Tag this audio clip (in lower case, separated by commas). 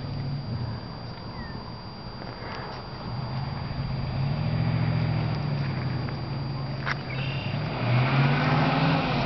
outside, rural or natural, vehicle, car